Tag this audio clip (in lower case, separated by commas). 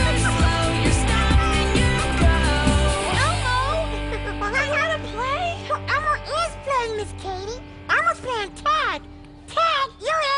singing